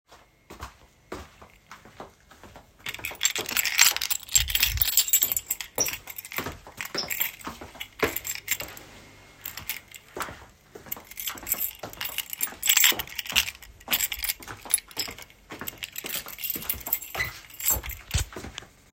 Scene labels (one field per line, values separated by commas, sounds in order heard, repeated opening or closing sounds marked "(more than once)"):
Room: hallway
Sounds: footsteps, keys